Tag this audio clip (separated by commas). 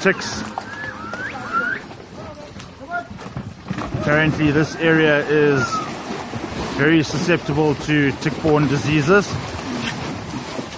Speech